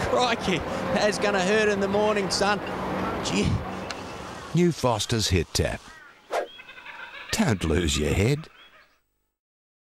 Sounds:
Speech

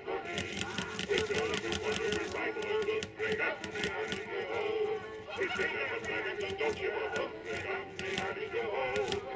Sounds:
Music

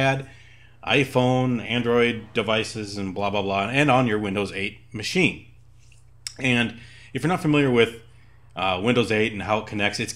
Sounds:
Speech

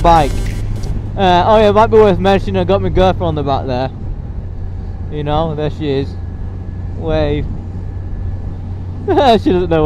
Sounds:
Vehicle, Speech

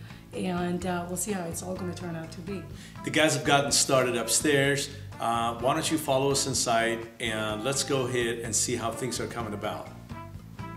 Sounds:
Female speech

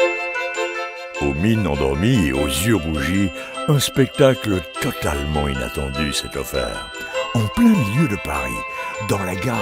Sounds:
Music, Speech

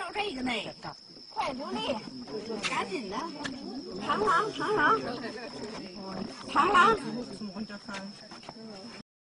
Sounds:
Speech

